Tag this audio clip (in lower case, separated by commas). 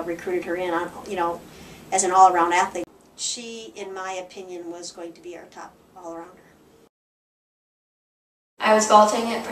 speech, inside a small room